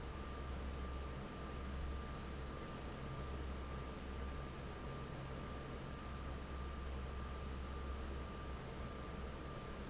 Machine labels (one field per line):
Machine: fan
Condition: normal